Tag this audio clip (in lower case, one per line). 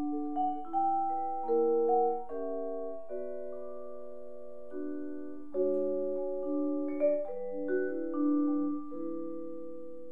playing vibraphone